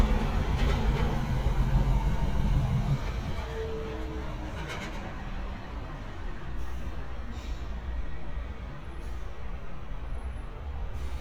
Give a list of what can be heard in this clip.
large-sounding engine